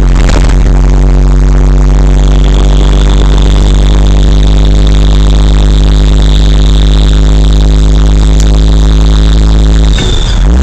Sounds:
Truck, Vehicle

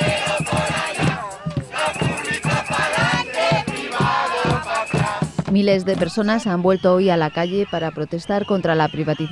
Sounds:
people marching

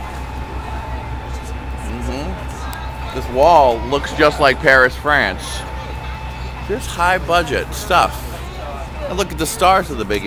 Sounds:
Speech

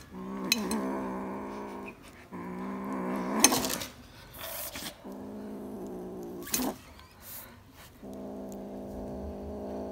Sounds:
cat growling

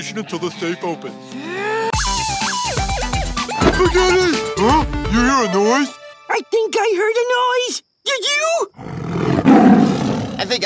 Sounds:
Speech, Music, Roar

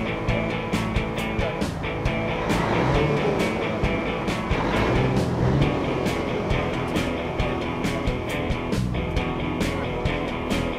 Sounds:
Music

